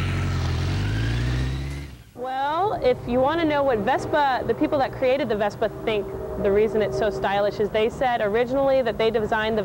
A car passing by and a lady speaking